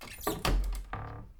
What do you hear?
wooden cupboard opening